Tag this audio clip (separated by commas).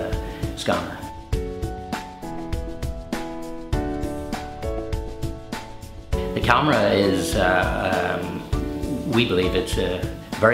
Music, Speech